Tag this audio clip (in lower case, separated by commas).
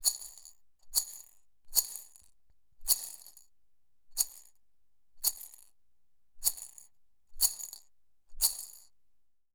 rattle